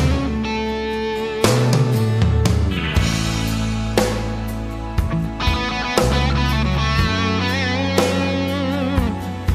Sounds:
Music

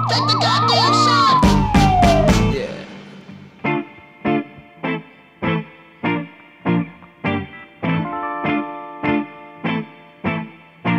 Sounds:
Background music, Music, Independent music

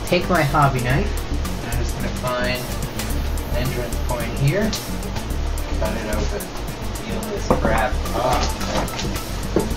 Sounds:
Speech, Music

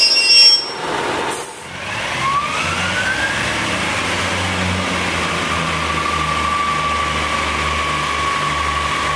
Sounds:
metro, train wagon, Train, Rail transport

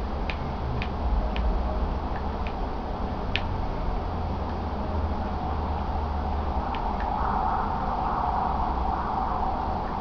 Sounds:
Wind noise (microphone)

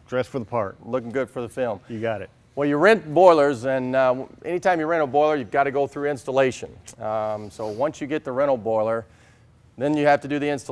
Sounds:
Speech

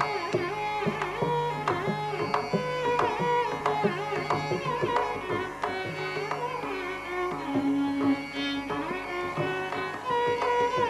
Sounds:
Carnatic music, Classical music, Music, Sitar, Musical instrument, Bowed string instrument

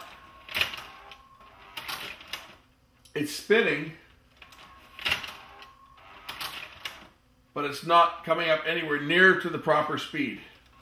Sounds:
Typewriter, inside a small room, Speech

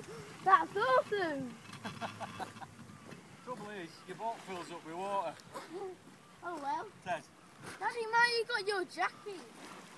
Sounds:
Speech

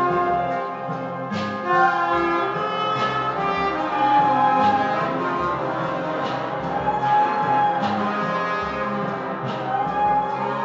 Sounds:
Trombone, Brass instrument

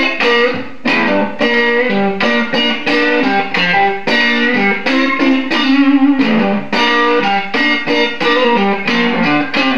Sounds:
Musical instrument, Music, Guitar

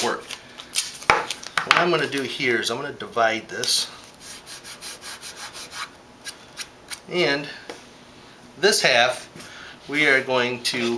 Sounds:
inside a small room, Speech

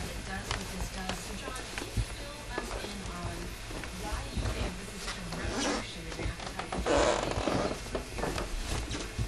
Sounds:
Speech

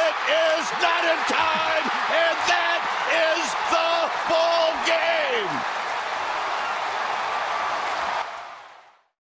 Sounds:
Speech

